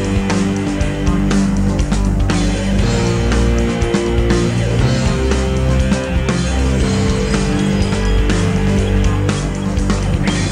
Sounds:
Progressive rock, Music

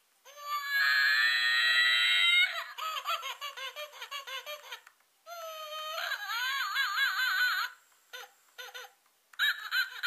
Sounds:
inside a small room

